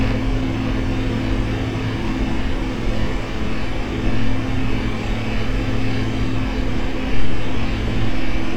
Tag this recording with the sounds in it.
large-sounding engine